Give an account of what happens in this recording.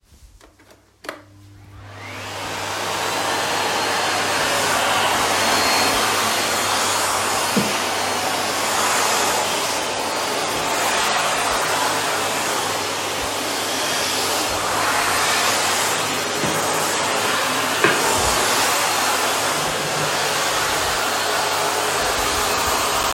The phone is worn on the wrist while cleaning the kitchen. A vacuum cleaner is used for several seconds while moving around the room.